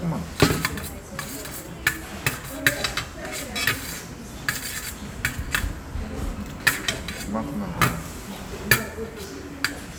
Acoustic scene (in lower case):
restaurant